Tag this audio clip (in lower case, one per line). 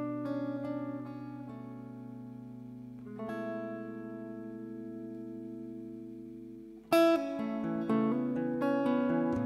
music
acoustic guitar